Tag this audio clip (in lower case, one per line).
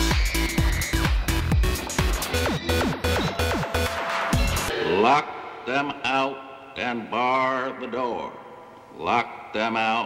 music
background music
speech